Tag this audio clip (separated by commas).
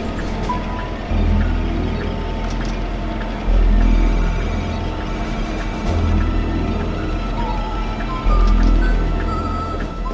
Music